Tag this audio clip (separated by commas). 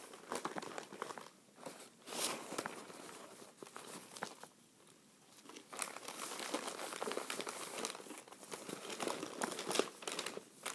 ripping paper